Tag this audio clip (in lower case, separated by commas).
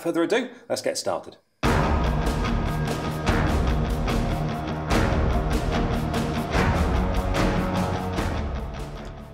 speech, music